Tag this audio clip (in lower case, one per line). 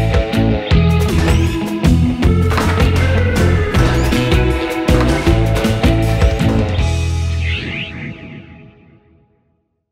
music